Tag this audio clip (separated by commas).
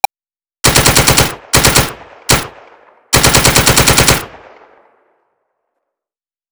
Explosion, Gunshot